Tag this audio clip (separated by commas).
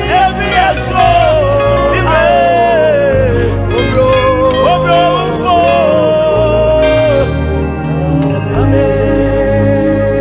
Gospel music, Music, Christian music